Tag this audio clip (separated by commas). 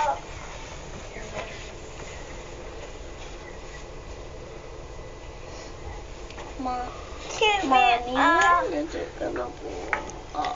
Speech